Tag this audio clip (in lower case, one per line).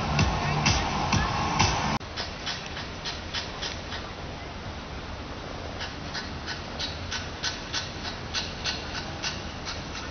music
speech